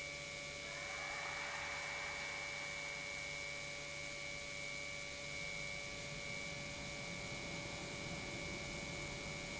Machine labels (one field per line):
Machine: pump